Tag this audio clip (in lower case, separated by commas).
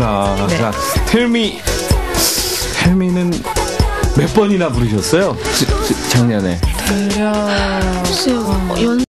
music, speech